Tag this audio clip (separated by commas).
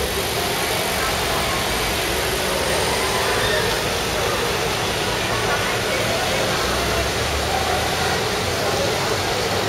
Speech